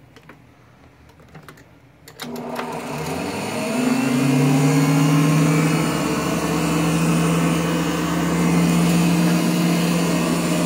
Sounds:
inside a small room

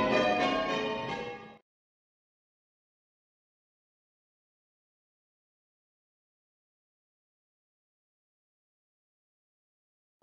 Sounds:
church bell ringing

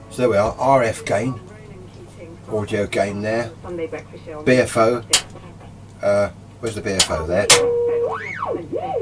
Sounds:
Radio, Speech

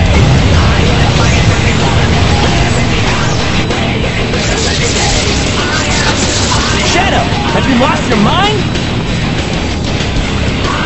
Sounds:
Music, Speech

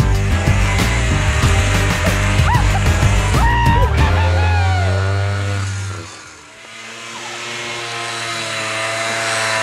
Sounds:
driving snowmobile

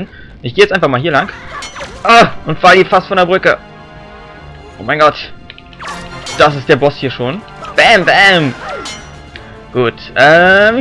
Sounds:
Speech, Music

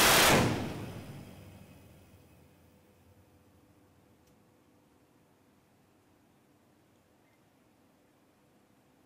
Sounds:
firing cannon

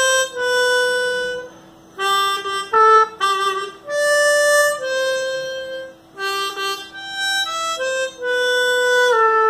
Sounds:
playing harmonica

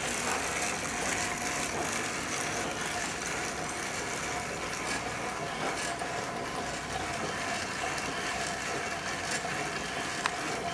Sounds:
Bicycle

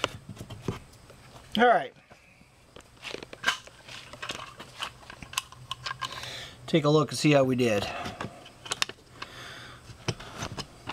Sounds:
Speech, inside a small room

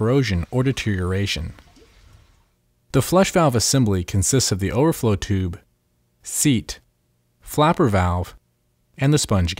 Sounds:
Speech

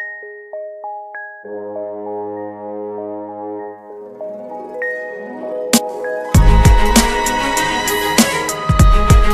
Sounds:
Music

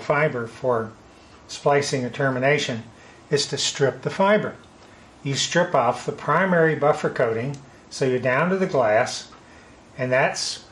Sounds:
Speech

